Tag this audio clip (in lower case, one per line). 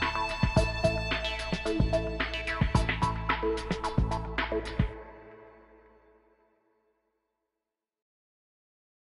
music